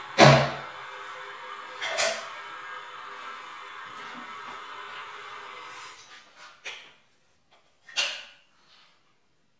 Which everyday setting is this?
restroom